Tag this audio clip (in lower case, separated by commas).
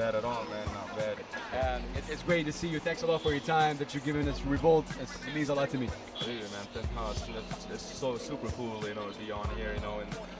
music, speech